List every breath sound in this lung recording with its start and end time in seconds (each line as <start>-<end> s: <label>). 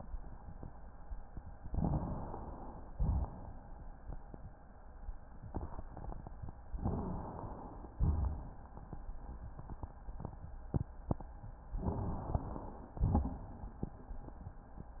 1.64-2.88 s: inhalation
2.93-3.61 s: exhalation
6.80-7.91 s: inhalation
8.02-8.70 s: exhalation
11.73-12.90 s: inhalation
12.99-13.75 s: exhalation